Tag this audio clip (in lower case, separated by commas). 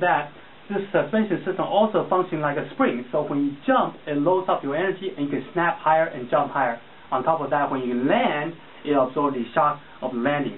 speech